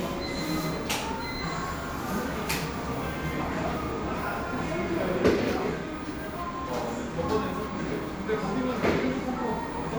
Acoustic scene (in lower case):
crowded indoor space